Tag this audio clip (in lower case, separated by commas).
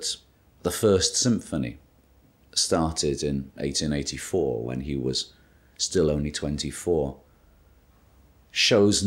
speech